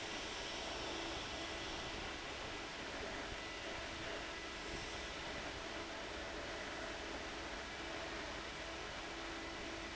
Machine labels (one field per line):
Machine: fan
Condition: abnormal